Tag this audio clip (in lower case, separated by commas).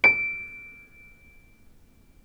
keyboard (musical), piano, music, musical instrument